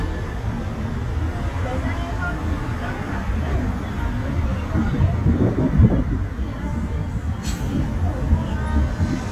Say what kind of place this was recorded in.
street